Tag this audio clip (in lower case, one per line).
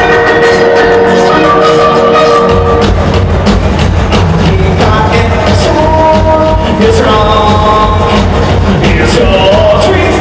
music
techno